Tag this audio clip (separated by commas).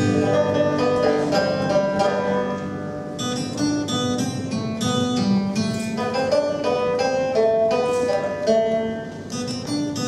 Music